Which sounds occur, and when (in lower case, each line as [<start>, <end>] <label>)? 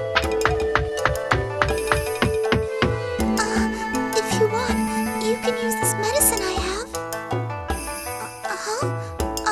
[0.00, 9.51] video game sound
[0.03, 9.51] music
[1.69, 2.53] sound effect
[3.36, 3.89] female speech
[4.13, 4.72] female speech
[5.16, 6.88] female speech
[8.39, 8.91] female speech